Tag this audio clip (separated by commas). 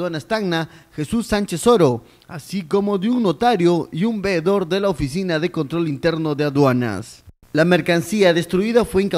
Speech